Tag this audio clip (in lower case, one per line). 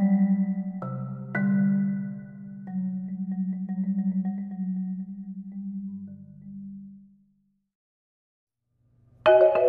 musical instrument
xylophone
music
percussion